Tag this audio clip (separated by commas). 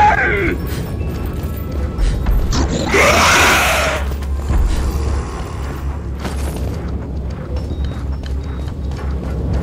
Speech, Run